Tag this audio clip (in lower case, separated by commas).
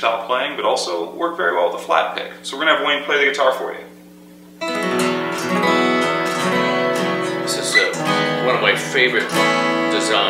musical instrument, plucked string instrument, acoustic guitar, guitar, speech, music, strum